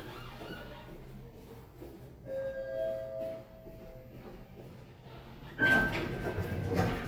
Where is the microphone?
in an elevator